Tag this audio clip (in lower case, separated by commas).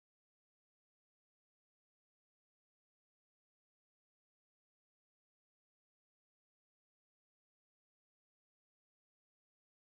speech, music